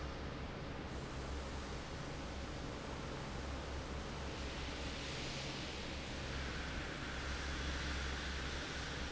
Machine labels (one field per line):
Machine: fan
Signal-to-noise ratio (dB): 0 dB